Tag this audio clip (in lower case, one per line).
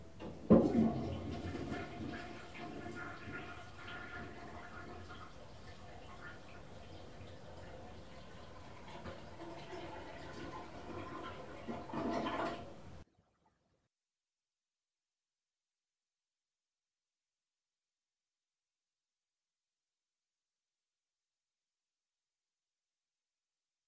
domestic sounds
toilet flush